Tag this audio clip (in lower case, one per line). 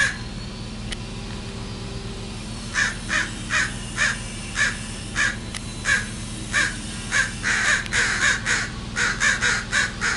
crow cawing